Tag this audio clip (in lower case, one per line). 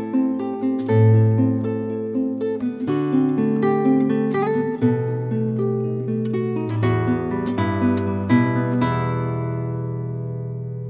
strum
music
musical instrument
acoustic guitar
plucked string instrument
guitar